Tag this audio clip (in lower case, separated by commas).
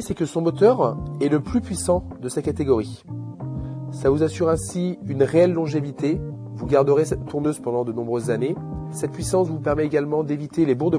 speech, music